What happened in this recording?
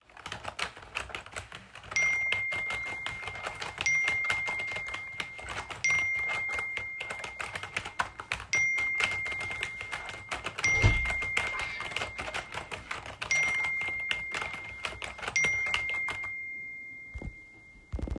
While I was typing my phone got a lot of notifications and someone opened the door to the office.